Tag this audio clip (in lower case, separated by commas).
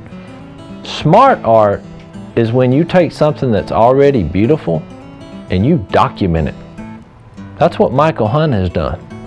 music, speech